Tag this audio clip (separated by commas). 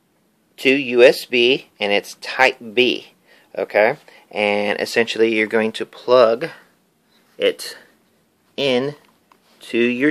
Speech